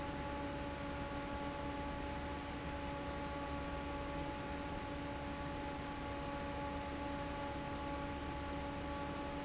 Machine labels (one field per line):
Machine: fan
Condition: normal